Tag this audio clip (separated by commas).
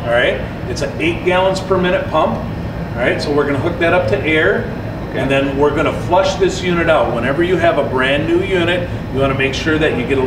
Speech